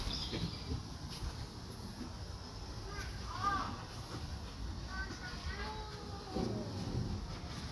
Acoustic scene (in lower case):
park